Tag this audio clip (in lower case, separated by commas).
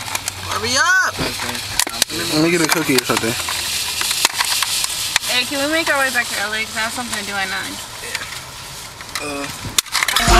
speech, outside, urban or man-made, vehicle